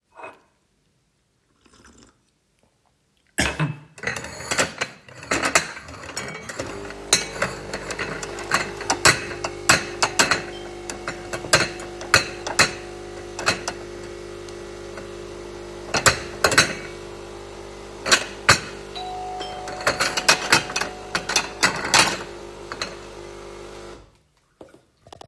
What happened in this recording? I was stacking some plates while I was making some coffee in the coffee machine when the doorbell started to ring.